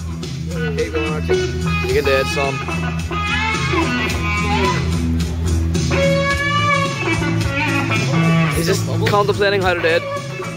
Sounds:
speech
music

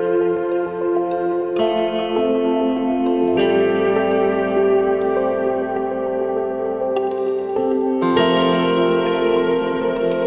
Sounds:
distortion

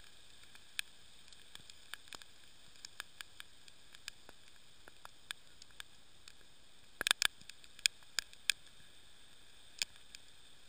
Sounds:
stream

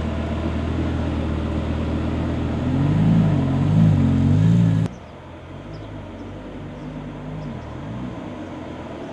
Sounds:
outside, urban or man-made
vehicle
car

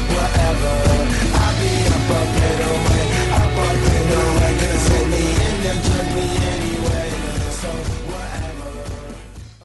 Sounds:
music

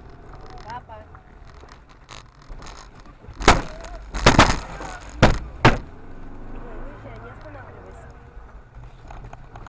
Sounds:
speech
outside, urban or man-made
vehicle

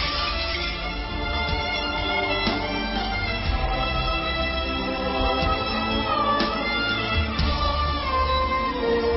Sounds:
musical instrument
music
fiddle

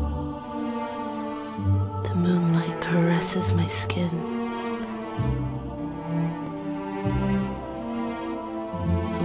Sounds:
music
speech

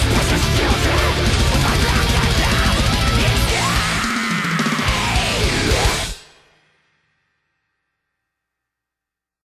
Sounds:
hi-hat

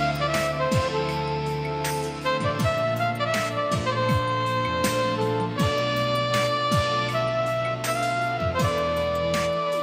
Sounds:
music

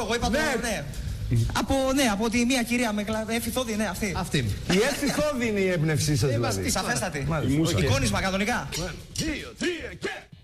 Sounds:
speech

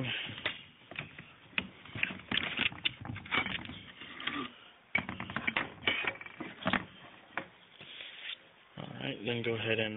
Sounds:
speech

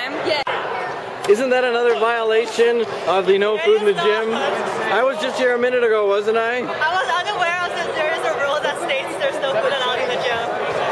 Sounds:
speech
inside a public space

